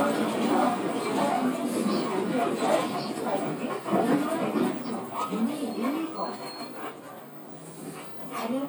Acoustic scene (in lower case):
bus